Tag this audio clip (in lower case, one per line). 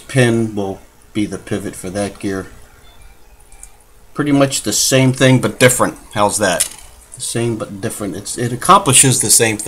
music
speech